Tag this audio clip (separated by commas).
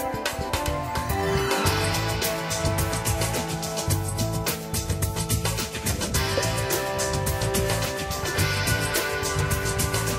Music